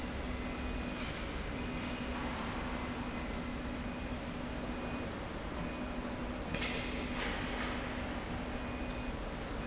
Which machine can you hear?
slide rail